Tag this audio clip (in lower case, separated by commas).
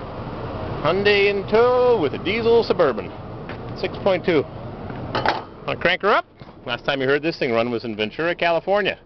vehicle, speech